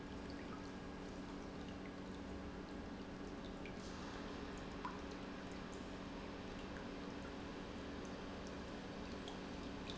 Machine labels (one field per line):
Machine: pump